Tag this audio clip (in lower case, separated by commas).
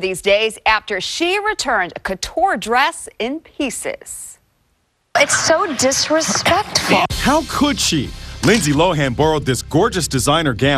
speech, inside a large room or hall, music